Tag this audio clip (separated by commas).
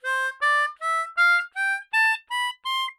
Musical instrument, Music, Harmonica